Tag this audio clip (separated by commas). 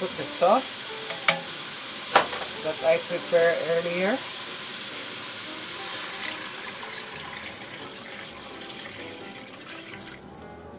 Music, Speech